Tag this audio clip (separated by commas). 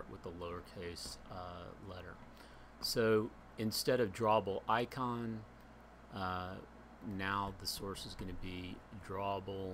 Speech